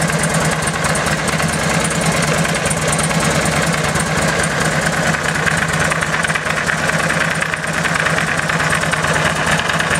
Vibrations of a running engine